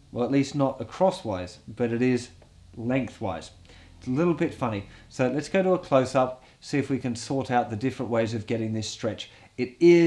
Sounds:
Speech

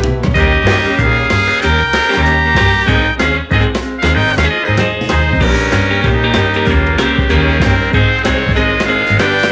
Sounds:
Music, Soundtrack music, Theme music

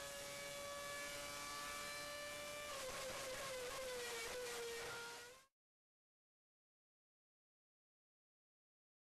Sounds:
Heavy engine (low frequency), Engine

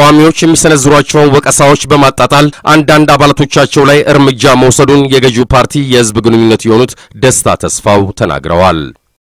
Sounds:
Speech

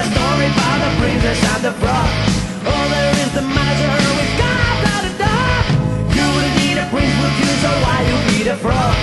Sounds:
Music

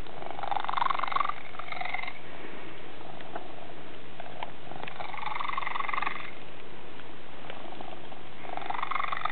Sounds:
Cat, Animal, Domestic animals

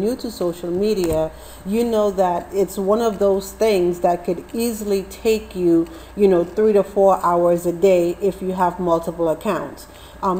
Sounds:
Speech

